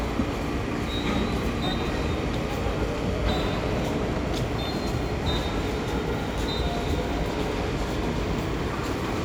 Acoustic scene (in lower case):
subway station